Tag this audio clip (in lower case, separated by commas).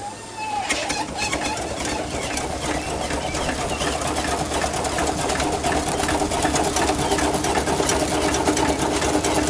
vehicle, motorcycle